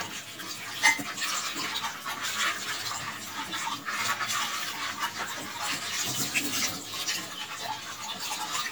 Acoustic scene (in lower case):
kitchen